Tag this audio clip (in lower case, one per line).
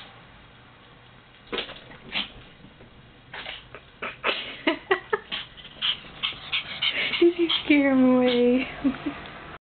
cat
speech
domestic animals